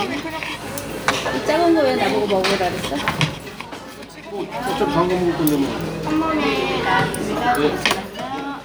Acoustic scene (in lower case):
restaurant